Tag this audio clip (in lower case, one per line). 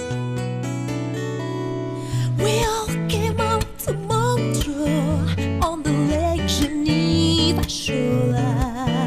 music